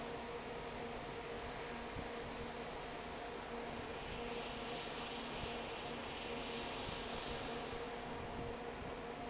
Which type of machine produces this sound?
fan